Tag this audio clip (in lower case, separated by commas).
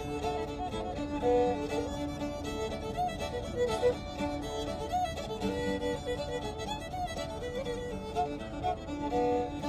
independent music, music